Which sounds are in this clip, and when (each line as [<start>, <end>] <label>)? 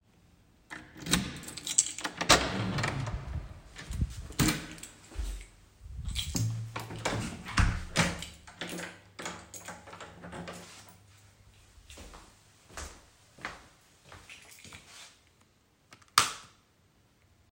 [0.81, 2.12] keys
[2.00, 5.47] door
[4.37, 5.47] keys
[6.05, 6.53] keys
[6.73, 8.59] door
[8.10, 10.93] keys
[11.78, 15.31] footsteps
[14.27, 15.13] keys
[16.12, 16.52] light switch